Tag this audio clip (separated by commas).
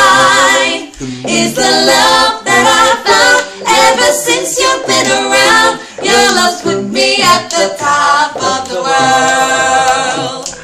Choir, Male singing, Female singing